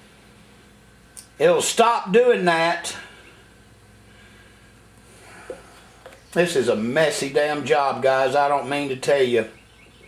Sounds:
inside a small room, Speech

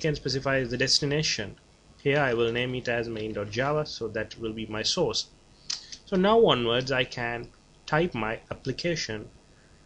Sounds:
Speech

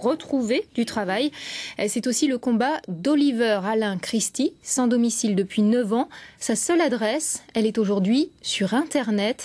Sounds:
Speech

